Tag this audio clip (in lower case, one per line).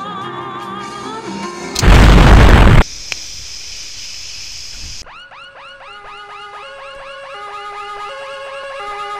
burst
music
explosion